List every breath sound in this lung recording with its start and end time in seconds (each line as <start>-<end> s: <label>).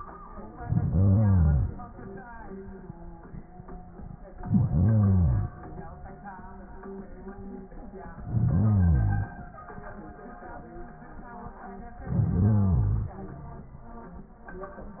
0.56-1.78 s: inhalation
4.32-5.54 s: inhalation
8.15-9.37 s: inhalation
12.01-13.23 s: inhalation